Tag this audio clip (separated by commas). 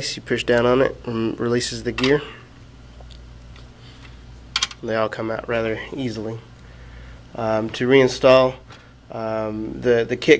Speech